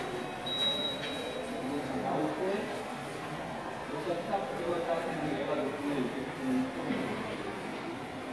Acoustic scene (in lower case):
subway station